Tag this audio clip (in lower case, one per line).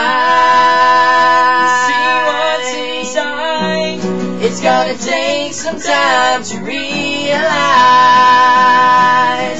music